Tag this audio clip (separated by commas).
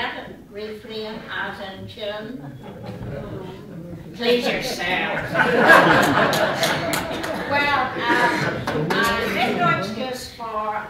Crowd, Speech